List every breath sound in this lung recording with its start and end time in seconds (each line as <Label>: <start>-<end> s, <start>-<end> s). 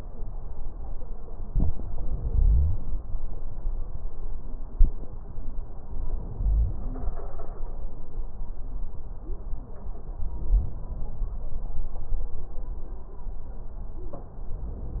Inhalation: 1.50-3.00 s, 5.86-7.10 s, 10.38-11.34 s, 14.36-15.00 s
Wheeze: 6.37-7.10 s